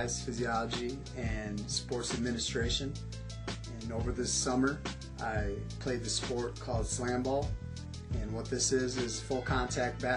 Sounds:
Music, Speech

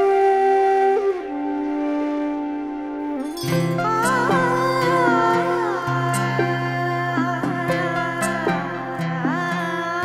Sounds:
Tender music, Music

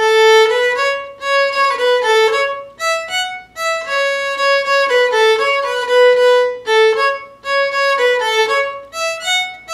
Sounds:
Musical instrument, Violin, Music

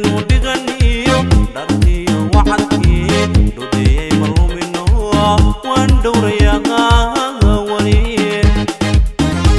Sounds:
New-age music, Music, Jazz, Funk

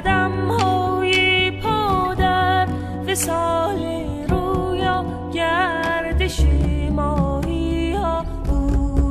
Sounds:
Music

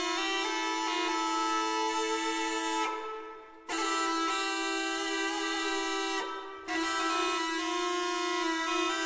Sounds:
Music

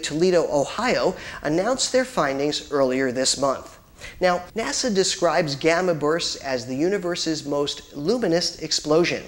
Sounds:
Speech

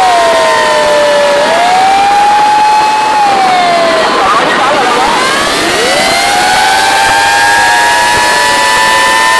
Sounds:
Siren, Police car (siren), Emergency vehicle

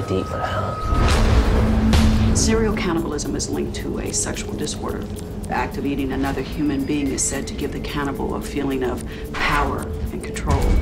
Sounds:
Speech, Music

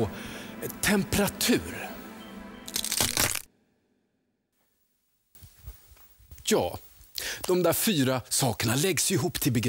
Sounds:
Speech

